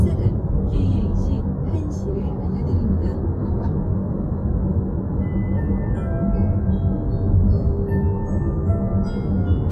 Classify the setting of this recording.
car